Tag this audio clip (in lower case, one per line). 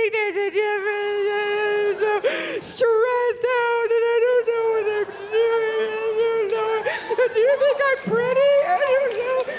speech
woman speaking